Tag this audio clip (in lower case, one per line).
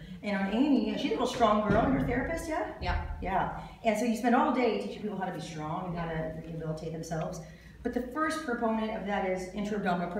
speech